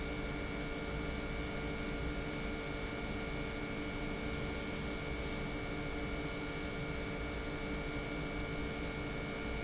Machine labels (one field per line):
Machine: pump